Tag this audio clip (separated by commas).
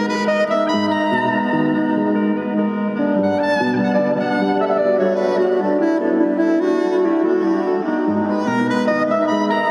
Brass instrument